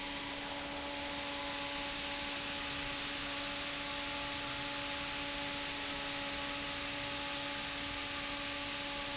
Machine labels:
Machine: fan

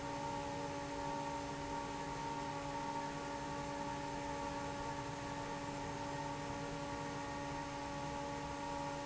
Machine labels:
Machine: fan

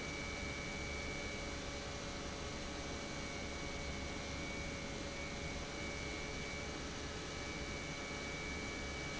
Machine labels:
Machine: pump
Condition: normal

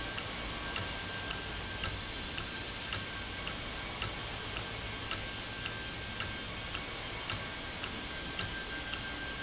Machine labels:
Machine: valve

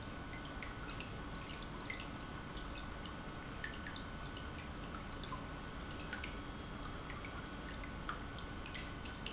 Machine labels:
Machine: pump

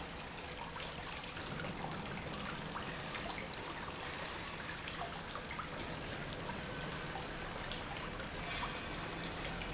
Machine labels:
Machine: pump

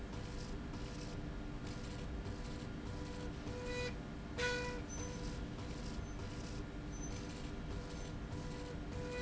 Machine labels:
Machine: slide rail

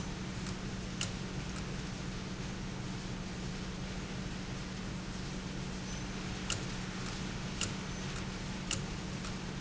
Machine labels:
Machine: valve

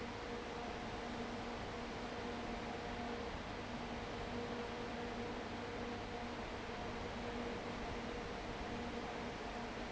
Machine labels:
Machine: fan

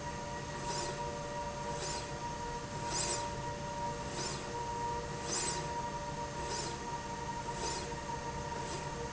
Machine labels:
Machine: slide rail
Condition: normal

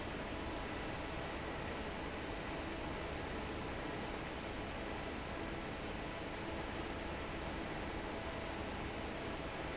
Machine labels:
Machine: fan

